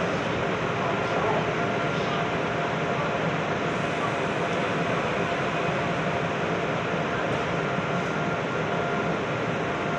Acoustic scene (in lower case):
subway train